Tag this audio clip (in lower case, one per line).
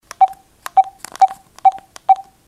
telephone
alarm